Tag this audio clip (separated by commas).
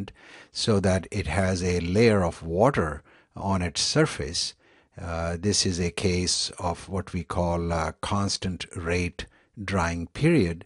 Speech